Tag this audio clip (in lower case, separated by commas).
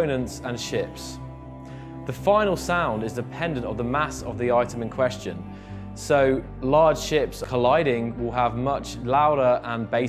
speech, music